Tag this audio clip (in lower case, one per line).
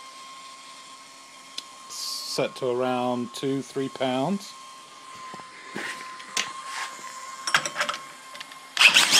power tool
tools